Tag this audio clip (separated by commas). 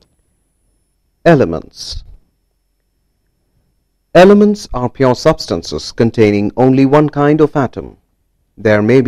Speech